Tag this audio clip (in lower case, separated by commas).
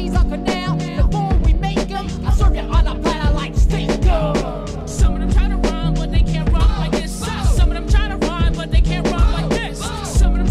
music, funk